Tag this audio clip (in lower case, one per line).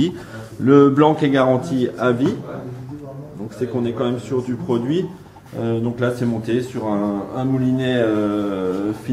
speech